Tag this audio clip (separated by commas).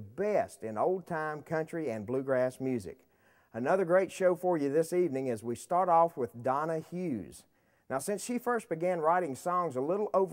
Speech